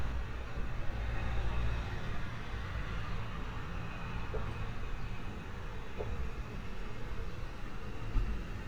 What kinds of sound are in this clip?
non-machinery impact